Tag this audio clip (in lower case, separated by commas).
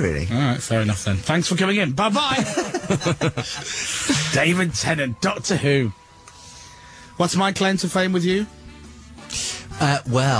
speech, music